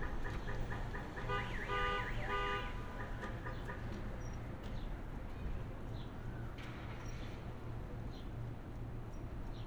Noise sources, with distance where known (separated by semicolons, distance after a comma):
car horn; car alarm; person or small group talking